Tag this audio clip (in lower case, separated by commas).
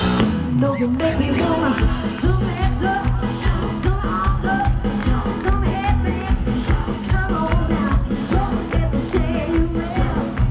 music